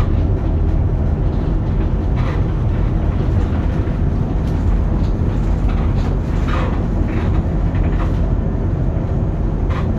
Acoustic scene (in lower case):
bus